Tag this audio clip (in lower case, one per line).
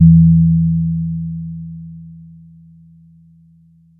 musical instrument
keyboard (musical)
music
piano